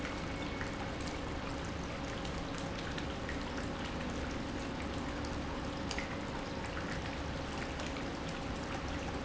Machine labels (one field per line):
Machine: pump